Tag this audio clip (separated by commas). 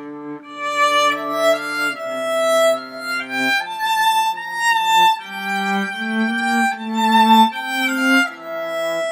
Violin, Music, Musical instrument